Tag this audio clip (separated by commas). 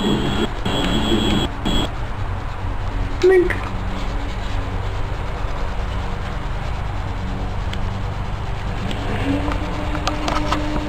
Bicycle, Vehicle